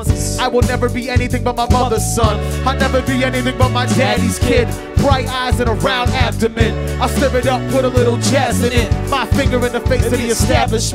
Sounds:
Singing, Music

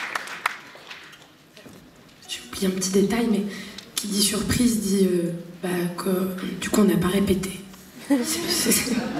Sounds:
Speech

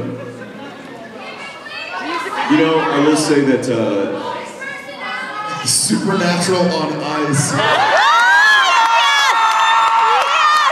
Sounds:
Cheering

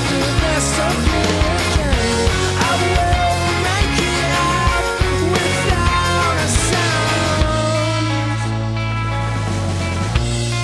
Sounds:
Music, Psychedelic rock

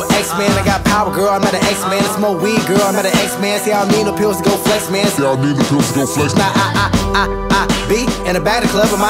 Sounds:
Music

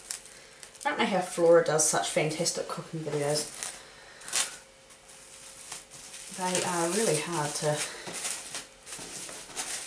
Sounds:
Speech

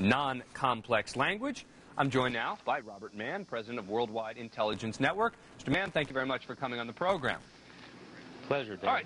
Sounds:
Tap, Speech

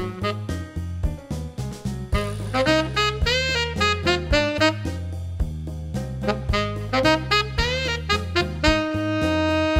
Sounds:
playing saxophone

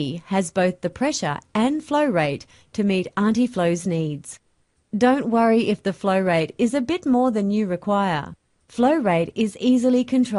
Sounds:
pumping water

